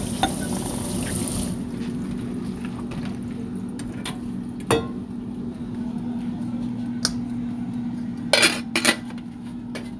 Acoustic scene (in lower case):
kitchen